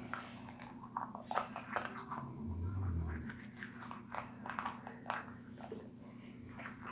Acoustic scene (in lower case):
restroom